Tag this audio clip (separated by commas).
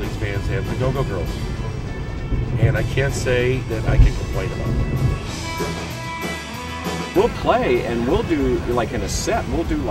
Music, Speech, Soundtrack music